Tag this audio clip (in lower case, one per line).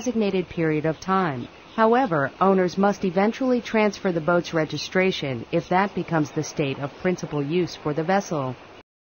speech